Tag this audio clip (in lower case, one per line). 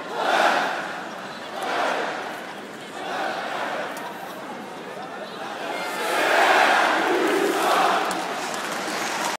speech